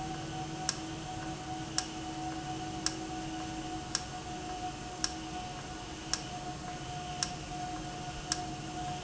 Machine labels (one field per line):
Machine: valve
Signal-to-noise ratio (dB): -6 dB